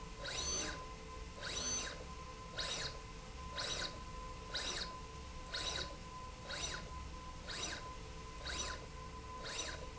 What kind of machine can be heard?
slide rail